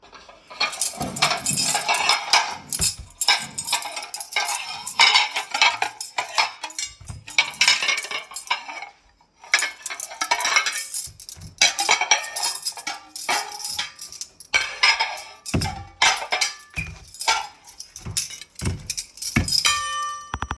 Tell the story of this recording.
The recording device is static on the table. I begin setting the dinner table, which involves moving plates and clattering cutlery against the dishes, creating a series of metallic and ceramic sounds.